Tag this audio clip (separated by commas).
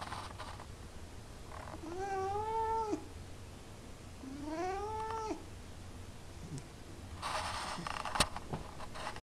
Cat, Domestic animals